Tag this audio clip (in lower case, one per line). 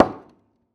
hammer
wood
tools